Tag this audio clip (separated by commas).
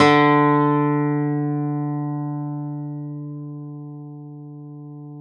Plucked string instrument, Music, Acoustic guitar, Musical instrument, Guitar